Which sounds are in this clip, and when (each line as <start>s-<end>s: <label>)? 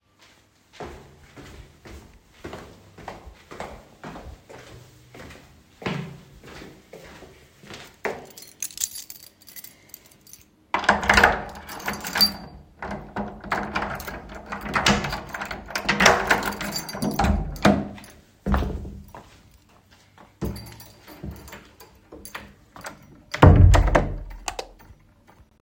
0.7s-8.2s: footsteps
8.2s-12.7s: keys
10.7s-12.6s: door
12.8s-19.0s: door
16.4s-19.3s: keys
18.6s-20.3s: footsteps
20.4s-23.0s: keys
20.4s-24.3s: door
24.4s-24.7s: light switch
24.8s-25.6s: keys